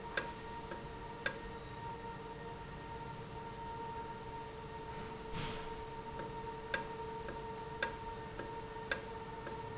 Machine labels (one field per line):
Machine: valve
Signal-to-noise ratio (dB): 0 dB